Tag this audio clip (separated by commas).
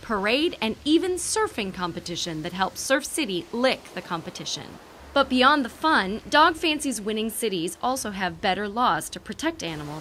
Speech